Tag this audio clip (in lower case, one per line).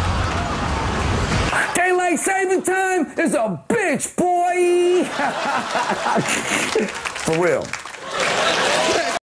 speech